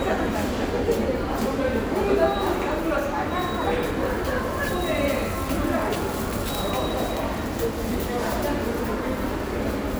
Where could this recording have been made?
in a subway station